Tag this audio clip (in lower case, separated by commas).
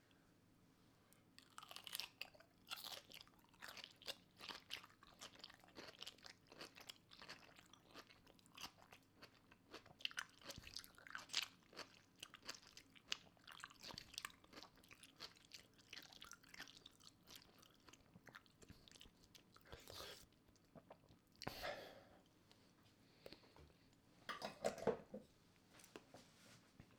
chewing